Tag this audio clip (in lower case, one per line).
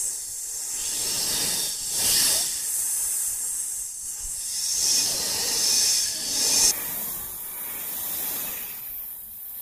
snake hissing